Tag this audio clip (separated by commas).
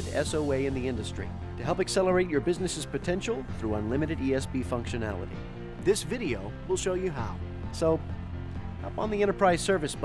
Speech, Music